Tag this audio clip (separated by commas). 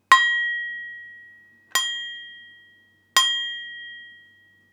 dishes, pots and pans, home sounds